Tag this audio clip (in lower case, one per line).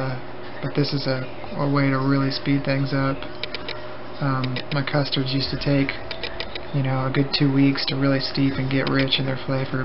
speech